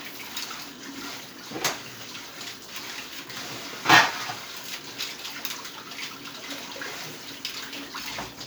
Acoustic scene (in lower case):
kitchen